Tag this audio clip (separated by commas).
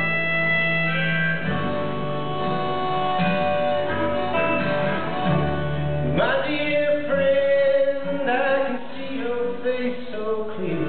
Music